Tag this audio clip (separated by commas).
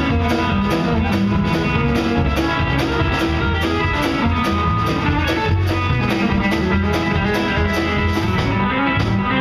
Music, Plucked string instrument, Musical instrument, Bass guitar, Guitar